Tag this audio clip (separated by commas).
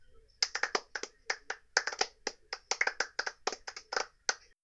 Clapping, Hands